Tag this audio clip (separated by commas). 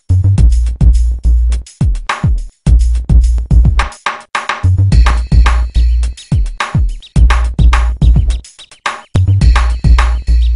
Music, Drum machine, Sampler